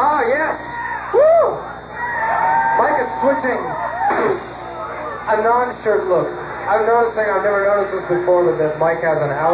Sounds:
speech

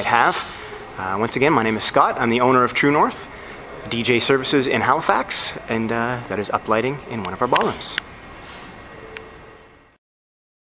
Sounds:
speech

